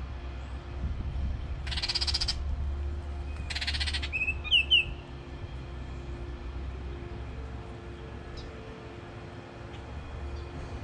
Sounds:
baltimore oriole calling

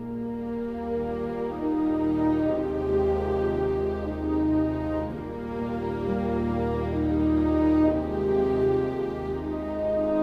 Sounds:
music

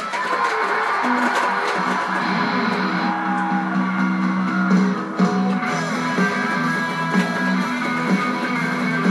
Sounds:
music, musical instrument, plucked string instrument, acoustic guitar, guitar

